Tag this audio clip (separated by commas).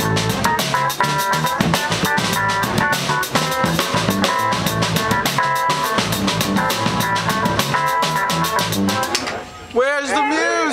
Exciting music, Music